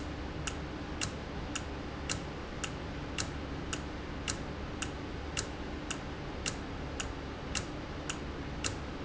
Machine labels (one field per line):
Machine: valve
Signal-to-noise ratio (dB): -6 dB